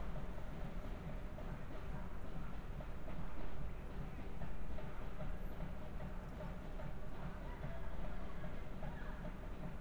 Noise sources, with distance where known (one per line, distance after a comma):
background noise